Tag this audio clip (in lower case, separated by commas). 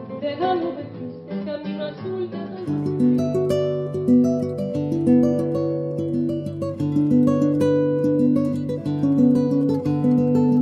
acoustic guitar, musical instrument, strum, music, background music, guitar, plucked string instrument